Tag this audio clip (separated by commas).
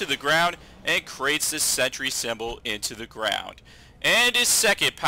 Speech